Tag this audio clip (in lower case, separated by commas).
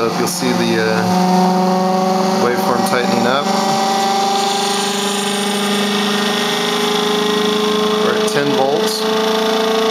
inside a small room, speech